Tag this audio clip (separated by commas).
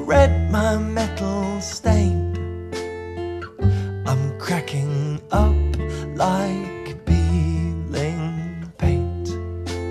Music